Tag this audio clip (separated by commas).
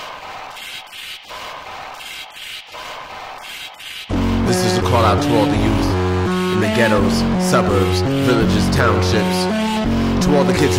Music, Speech, Sampler